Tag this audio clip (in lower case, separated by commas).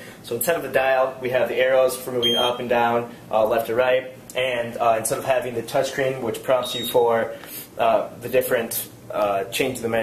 speech